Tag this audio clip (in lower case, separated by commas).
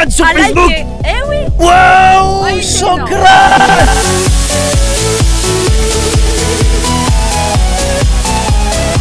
speech, music